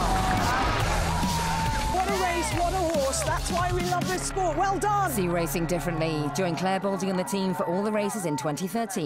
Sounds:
Speech, Music

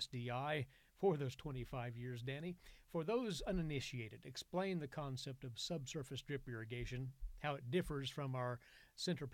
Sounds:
Speech

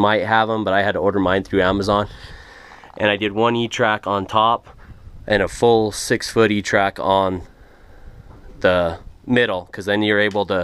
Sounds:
Speech

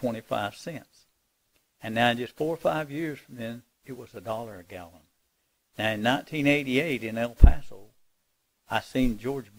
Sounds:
Speech

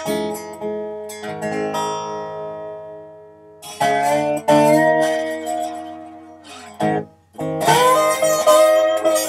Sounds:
Music, Steel guitar

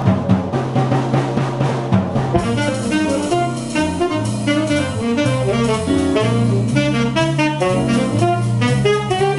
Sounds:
Music, Drum roll, Drum, Saxophone

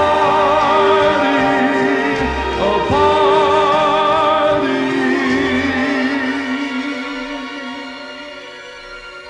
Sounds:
Singing, Music

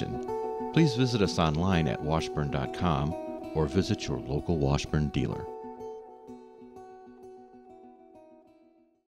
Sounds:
Music, Speech, Musical instrument, Strum, Guitar, Plucked string instrument, Acoustic guitar

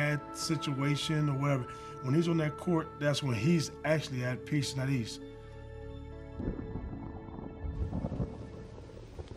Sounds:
Music, Speech

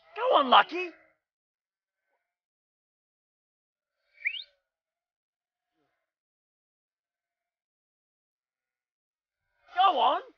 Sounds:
Speech

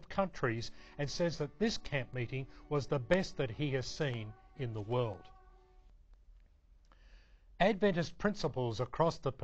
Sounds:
Speech

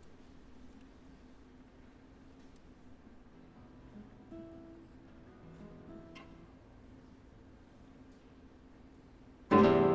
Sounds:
Musical instrument, Strum, Plucked string instrument, Guitar, Music

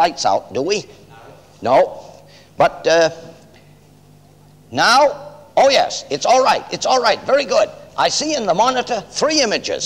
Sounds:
Speech

